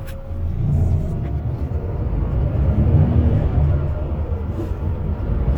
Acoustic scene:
bus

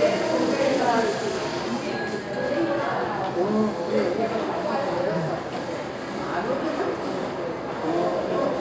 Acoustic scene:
crowded indoor space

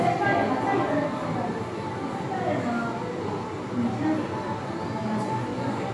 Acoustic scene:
crowded indoor space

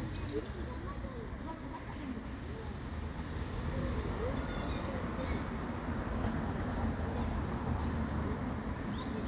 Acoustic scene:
residential area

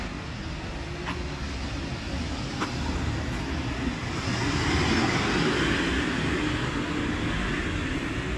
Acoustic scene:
residential area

